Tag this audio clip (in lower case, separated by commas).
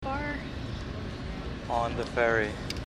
vehicle, boat